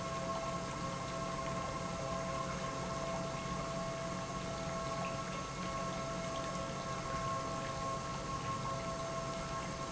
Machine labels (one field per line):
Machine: pump